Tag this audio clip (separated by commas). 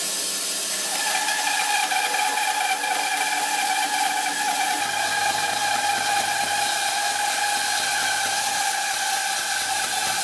train whistling